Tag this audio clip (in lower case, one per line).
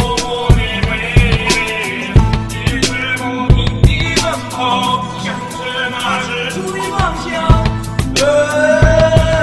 music